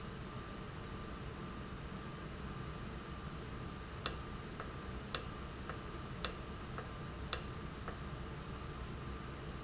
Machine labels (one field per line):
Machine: valve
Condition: normal